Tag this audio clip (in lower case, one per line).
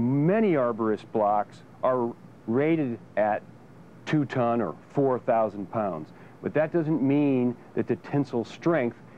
speech